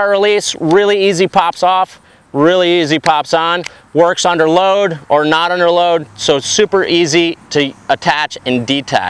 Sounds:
speech

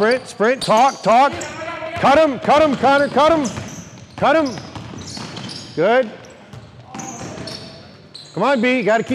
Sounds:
basketball bounce

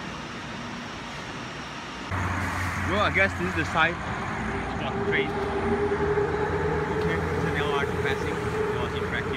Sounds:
speech
train
vehicle
outside, urban or man-made

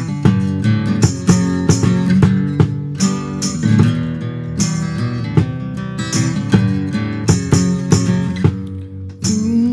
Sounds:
music

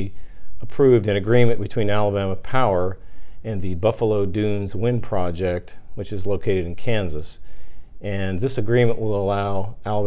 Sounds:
speech

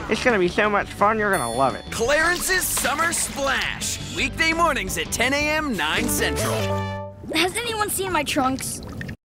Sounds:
speech
music

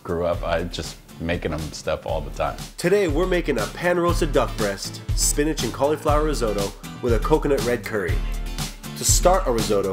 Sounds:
music
speech

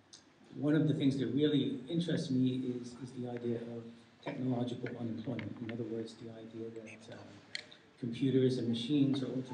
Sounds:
speech

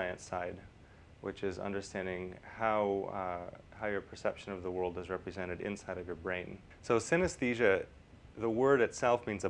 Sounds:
speech

